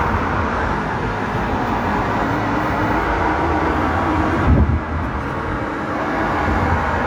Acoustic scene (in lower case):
street